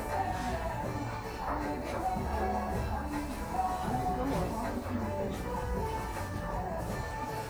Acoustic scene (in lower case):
cafe